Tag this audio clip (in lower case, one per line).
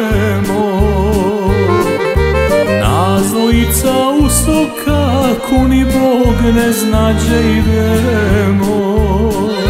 music